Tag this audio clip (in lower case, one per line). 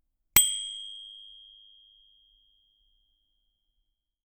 bicycle bell
bicycle
vehicle
bell
alarm